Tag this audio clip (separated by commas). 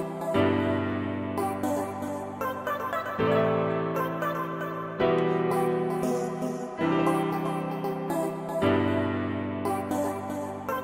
Music